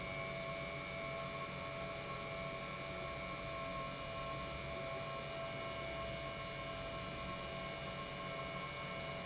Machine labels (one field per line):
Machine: pump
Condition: normal